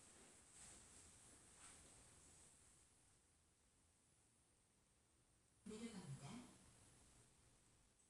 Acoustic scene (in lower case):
elevator